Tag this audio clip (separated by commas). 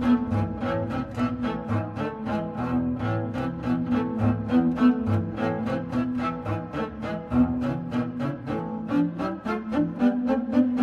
playing double bass